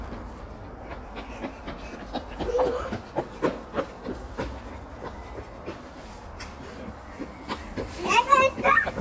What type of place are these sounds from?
residential area